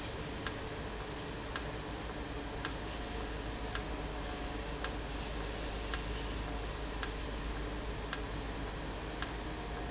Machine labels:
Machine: valve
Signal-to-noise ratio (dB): -6 dB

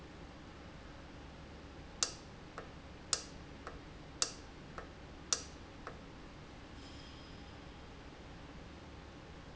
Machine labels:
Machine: valve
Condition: normal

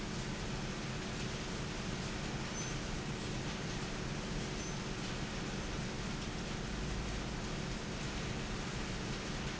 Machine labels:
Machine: fan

